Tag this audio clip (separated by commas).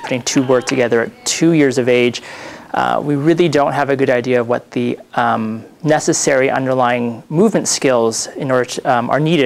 man speaking, Speech